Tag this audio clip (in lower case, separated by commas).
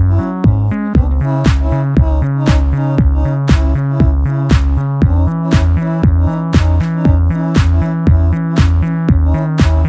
music